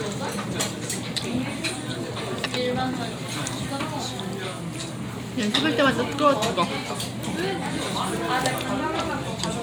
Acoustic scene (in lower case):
crowded indoor space